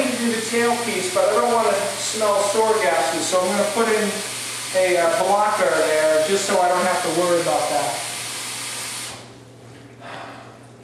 An adult man speaking over the sound of running water